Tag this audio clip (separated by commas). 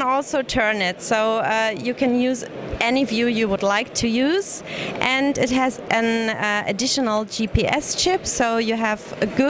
Speech